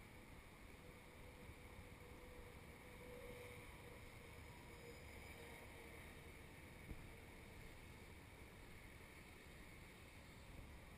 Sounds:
Vehicle

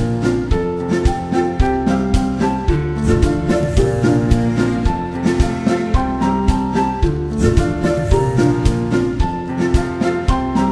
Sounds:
Keyboard (musical), Piano

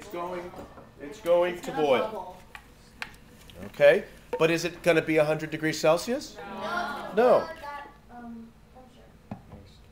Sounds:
Speech

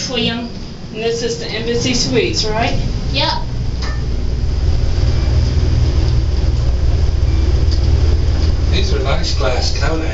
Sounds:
Speech

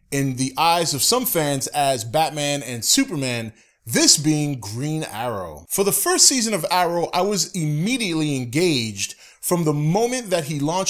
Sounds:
Speech

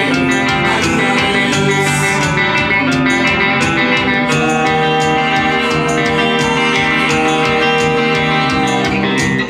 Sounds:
Music, Musical instrument, Plucked string instrument, Guitar, Strum

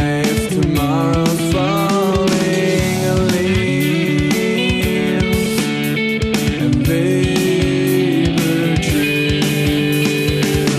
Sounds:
Music

